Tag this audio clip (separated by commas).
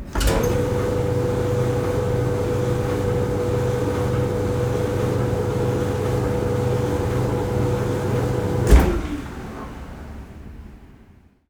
Engine